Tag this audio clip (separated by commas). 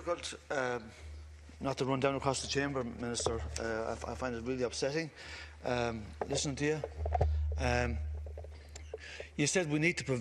monologue, Speech, man speaking